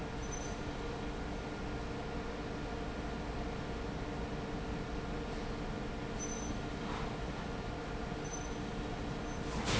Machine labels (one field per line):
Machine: fan